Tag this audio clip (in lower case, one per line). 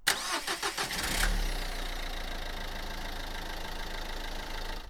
car
engine
engine starting
vehicle
motor vehicle (road)